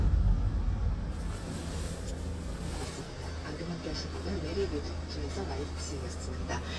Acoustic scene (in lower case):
car